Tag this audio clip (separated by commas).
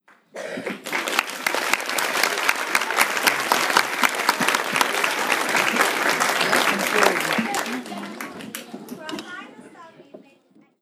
Applause, Human group actions